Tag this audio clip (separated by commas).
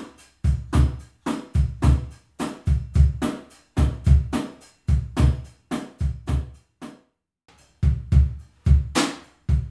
playing bass drum